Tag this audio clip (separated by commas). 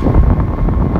Wind